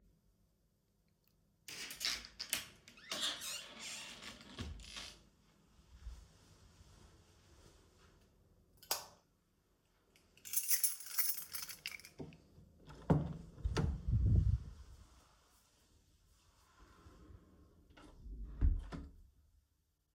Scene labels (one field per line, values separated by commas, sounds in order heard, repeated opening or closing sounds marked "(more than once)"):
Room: hallway, living room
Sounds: wardrobe or drawer, light switch, keys, door (more than once)